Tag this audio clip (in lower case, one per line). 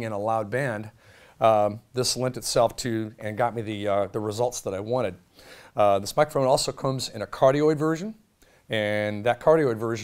speech